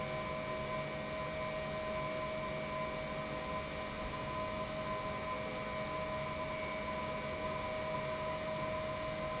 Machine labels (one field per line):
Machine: pump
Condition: normal